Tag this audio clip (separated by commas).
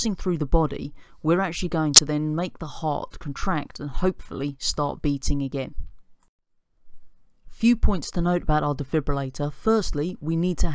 Speech